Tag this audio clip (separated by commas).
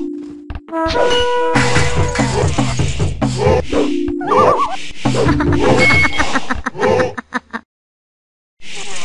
Music, outside, rural or natural